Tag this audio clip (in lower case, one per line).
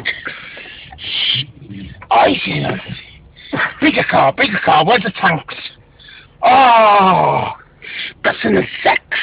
outside, urban or man-made
speech